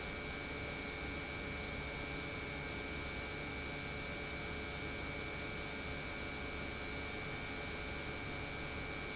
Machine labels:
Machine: pump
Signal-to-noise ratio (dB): 0 dB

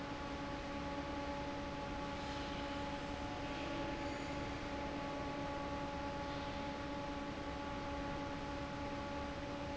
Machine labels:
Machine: fan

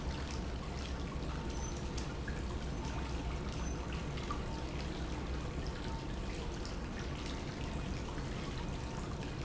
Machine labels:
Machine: pump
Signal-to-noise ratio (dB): -6 dB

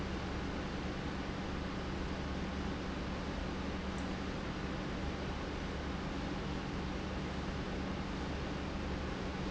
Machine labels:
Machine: pump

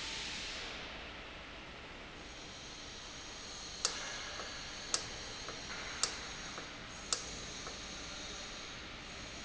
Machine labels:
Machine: valve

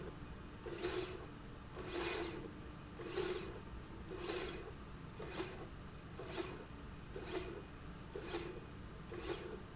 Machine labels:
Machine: slide rail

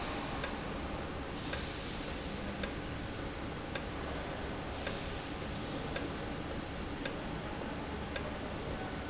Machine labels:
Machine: valve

